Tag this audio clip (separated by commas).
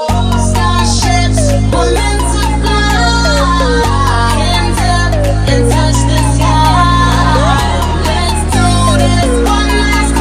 Music